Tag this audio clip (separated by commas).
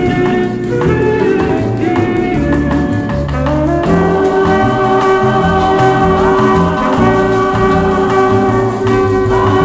Swing music, Music